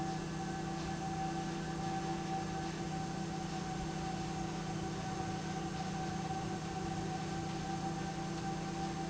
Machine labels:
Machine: pump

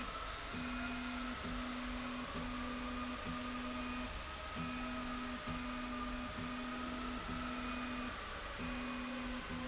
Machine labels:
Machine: slide rail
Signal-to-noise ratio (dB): 0 dB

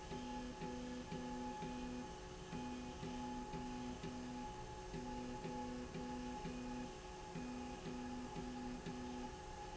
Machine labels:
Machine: slide rail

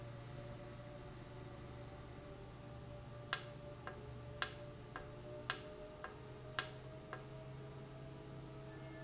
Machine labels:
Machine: valve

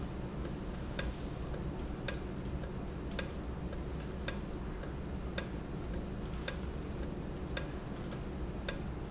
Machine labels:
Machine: valve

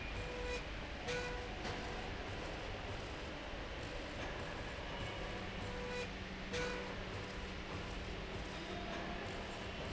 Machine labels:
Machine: slide rail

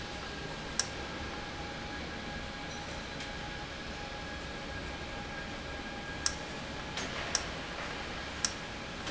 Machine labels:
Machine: valve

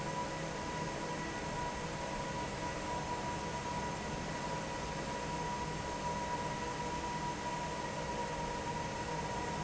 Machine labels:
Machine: fan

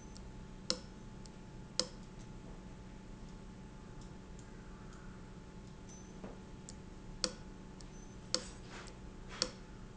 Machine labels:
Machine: valve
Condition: abnormal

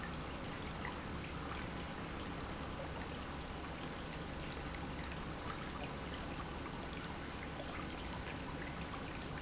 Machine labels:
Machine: pump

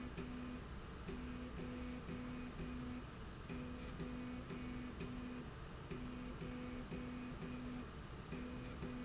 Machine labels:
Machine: slide rail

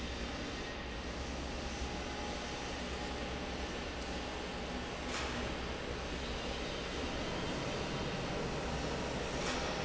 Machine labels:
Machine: fan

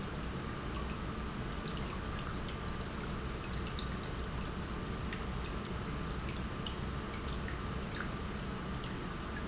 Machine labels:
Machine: pump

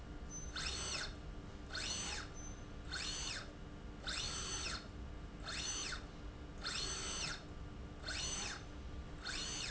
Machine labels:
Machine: slide rail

